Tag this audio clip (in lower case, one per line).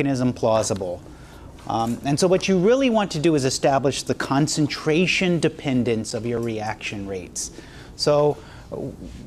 speech